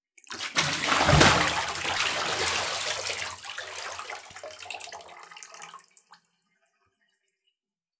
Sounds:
Domestic sounds, Splash, Liquid, Bathtub (filling or washing)

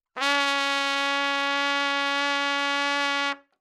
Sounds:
Trumpet, Brass instrument, Musical instrument, Music

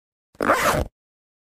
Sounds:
Zipper (clothing), home sounds

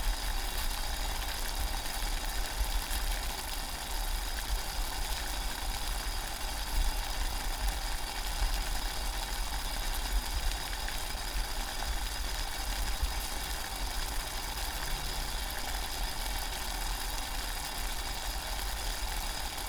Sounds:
Boiling, Liquid

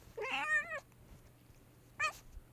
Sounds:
Animal, Cat, pets, Meow

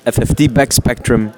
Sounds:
Human voice, Speech

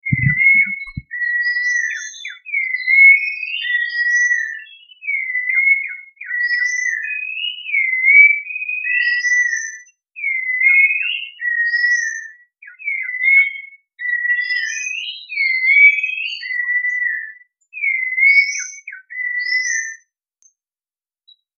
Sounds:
Animal, Bird, Bird vocalization, Wild animals

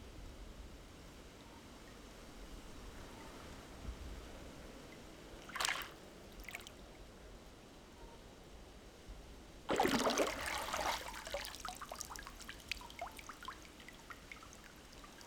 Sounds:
Water, Liquid, Drip, Pour, Trickle, Splash

